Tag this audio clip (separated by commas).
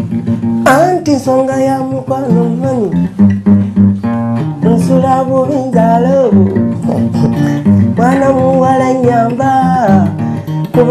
Music